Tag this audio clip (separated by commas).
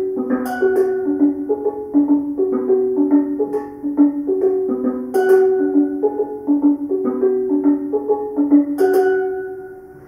playing steelpan